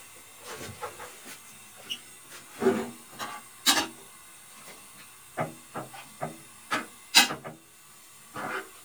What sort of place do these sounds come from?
kitchen